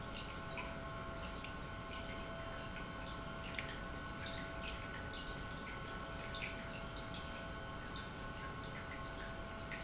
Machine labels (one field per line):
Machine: pump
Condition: normal